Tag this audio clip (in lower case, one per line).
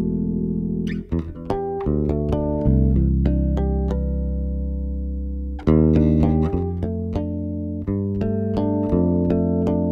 playing bass guitar